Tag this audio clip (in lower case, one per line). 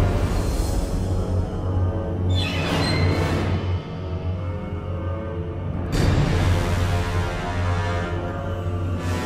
soundtrack music
scary music
music